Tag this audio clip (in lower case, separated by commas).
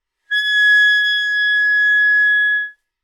musical instrument, music, woodwind instrument